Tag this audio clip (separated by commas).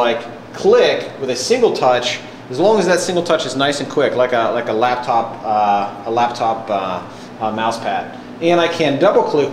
Speech